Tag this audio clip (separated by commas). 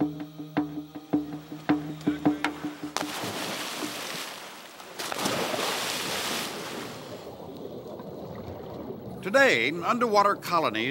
Speech, outside, rural or natural, Music